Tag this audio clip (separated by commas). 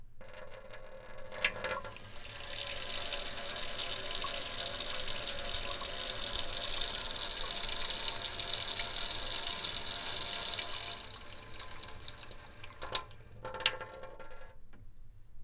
home sounds, Sink (filling or washing), Water tap